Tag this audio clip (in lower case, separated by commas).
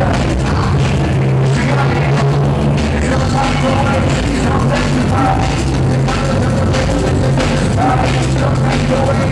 drum and bass, electronic music, music